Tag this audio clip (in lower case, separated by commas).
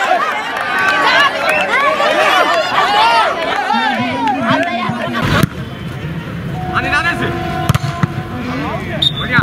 playing volleyball